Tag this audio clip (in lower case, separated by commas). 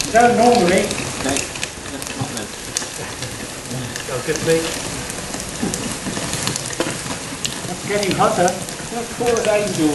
speech, gush